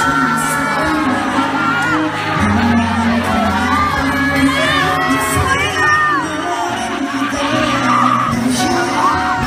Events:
[0.00, 0.96] cheering
[0.00, 1.10] male singing
[0.00, 9.45] crowd
[0.00, 9.45] music
[1.42, 2.09] male singing
[1.46, 1.97] cheering
[2.24, 5.42] male singing
[2.54, 4.75] kid speaking
[4.96, 5.31] kid speaking
[5.46, 6.21] kid speaking
[5.58, 8.08] male singing
[7.67, 8.30] human voice
[8.39, 9.45] male singing
[8.84, 9.45] human voice

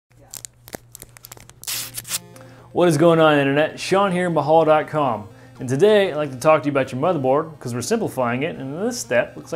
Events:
[0.00, 9.55] music
[0.17, 0.40] crumpling
[0.59, 1.41] crumpling
[1.55, 2.13] sound effect
[2.71, 5.24] male speech
[5.22, 5.51] breathing
[5.55, 7.43] male speech
[7.57, 9.55] male speech

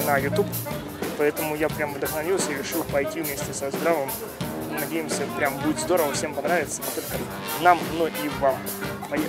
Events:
[0.00, 0.50] male speech
[0.00, 9.25] music
[1.00, 4.12] male speech
[2.71, 2.82] tick
[4.05, 4.40] speech
[4.69, 6.42] speech
[4.71, 7.27] male speech
[7.53, 8.64] male speech
[8.99, 9.25] male speech

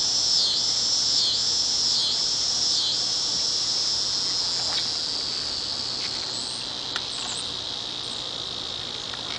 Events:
[0.00, 9.35] insect
[0.00, 9.35] wind
[3.31, 3.66] bird song
[4.51, 4.83] generic impact sounds
[5.96, 6.31] generic impact sounds
[6.89, 7.01] generic impact sounds
[7.15, 7.35] generic impact sounds
[8.73, 9.09] surface contact
[9.07, 9.16] generic impact sounds
[9.28, 9.35] generic impact sounds

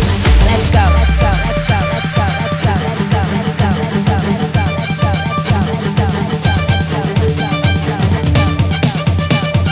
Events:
[0.00, 9.71] music
[0.35, 9.71] female singing

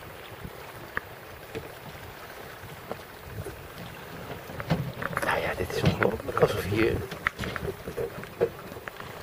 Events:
[0.00, 9.22] ocean
[0.00, 9.22] sailing ship
[0.00, 9.22] wind
[0.26, 0.79] wind noise (microphone)
[0.85, 1.00] generic impact sounds
[1.53, 1.72] generic impact sounds
[2.87, 3.04] generic impact sounds
[3.18, 3.85] wind noise (microphone)
[3.76, 4.00] generic impact sounds
[4.55, 4.77] generic impact sounds
[5.00, 5.22] generic impact sounds
[5.18, 6.98] male speech
[5.81, 6.04] generic impact sounds
[7.09, 7.28] generic impact sounds
[7.40, 7.56] generic impact sounds
[8.19, 8.28] generic impact sounds
[8.64, 8.88] generic impact sounds

